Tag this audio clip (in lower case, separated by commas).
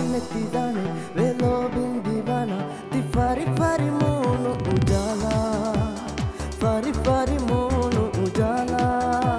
music of asia, singing, music